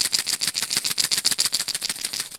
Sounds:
percussion
rattle (instrument)
music
musical instrument

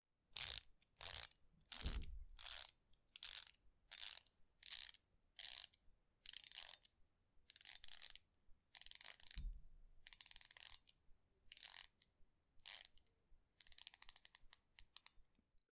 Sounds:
mechanisms
pawl

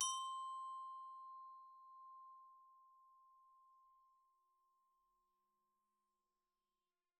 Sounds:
music
glockenspiel
musical instrument
mallet percussion
percussion

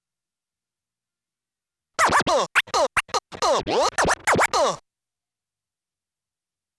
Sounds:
musical instrument
music
scratching (performance technique)

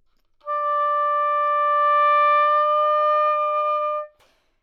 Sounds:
musical instrument
wind instrument
music

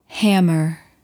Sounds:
speech
human voice
female speech

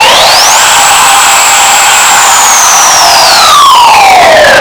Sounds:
sawing
tools

